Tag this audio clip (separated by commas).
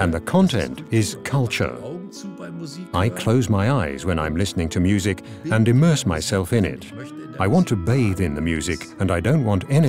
Speech, Music